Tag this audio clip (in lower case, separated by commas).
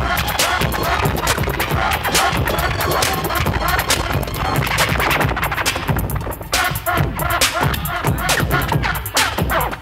music, scratching (performance technique), hip hop music